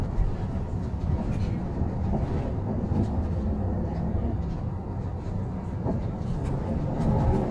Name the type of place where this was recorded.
bus